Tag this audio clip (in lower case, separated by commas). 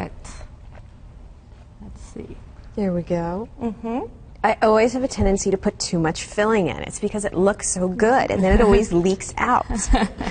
speech